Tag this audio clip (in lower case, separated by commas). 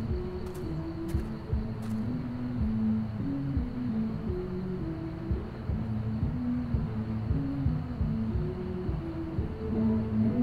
musical instrument, music